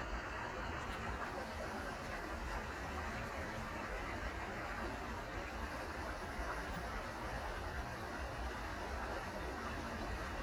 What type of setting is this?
park